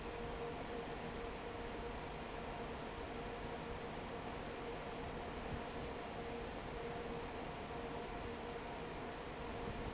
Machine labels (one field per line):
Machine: fan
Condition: normal